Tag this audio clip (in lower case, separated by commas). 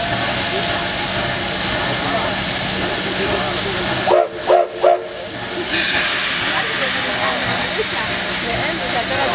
steam whistle, hiss, steam